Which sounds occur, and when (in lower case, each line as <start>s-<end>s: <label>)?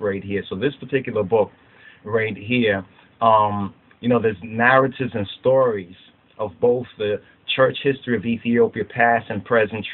0.0s-1.4s: man speaking
0.0s-9.9s: background noise
1.5s-2.0s: breathing
2.0s-2.8s: man speaking
2.9s-3.2s: breathing
3.2s-3.7s: man speaking
3.9s-5.8s: man speaking
6.3s-7.2s: man speaking
7.4s-9.9s: man speaking